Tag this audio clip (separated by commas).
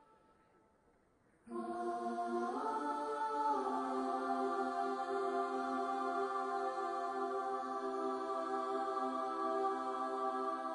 Choir, Female singing